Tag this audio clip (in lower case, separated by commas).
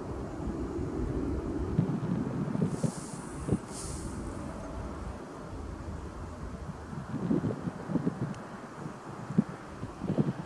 wind, vehicle